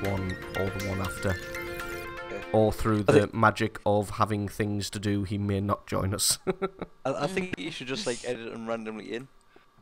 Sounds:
music
speech

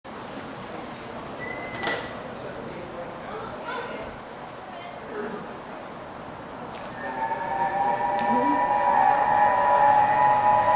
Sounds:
train whistling

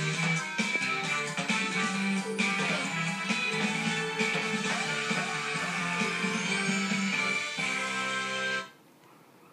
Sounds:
music

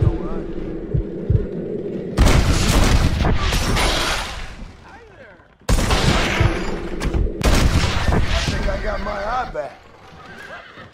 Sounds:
boom
speech

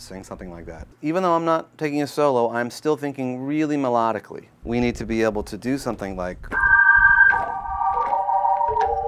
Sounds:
keyboard (musical)
speech
piano
music
organ
musical instrument

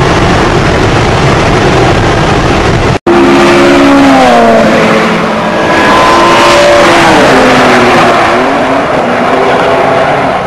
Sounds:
car passing by

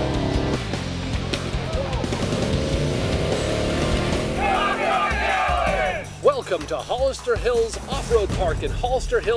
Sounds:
vehicle
speech
music
car

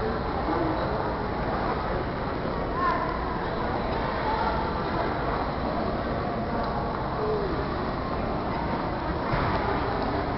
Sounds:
speech

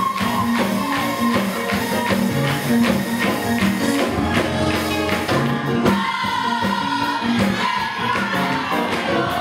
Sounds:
choir
music

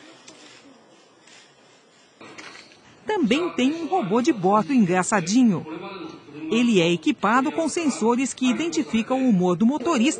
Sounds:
speech

